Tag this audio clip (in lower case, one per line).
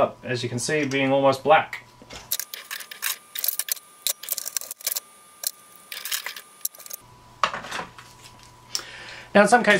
speech